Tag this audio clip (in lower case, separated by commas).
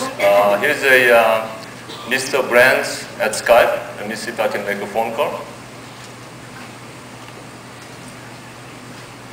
speech, television